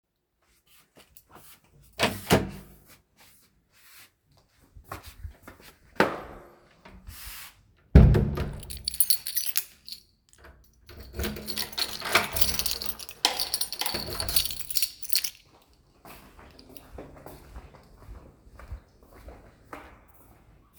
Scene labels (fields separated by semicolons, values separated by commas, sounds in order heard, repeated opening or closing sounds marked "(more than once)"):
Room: hallway, living room; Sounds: door (more than once), footsteps, keys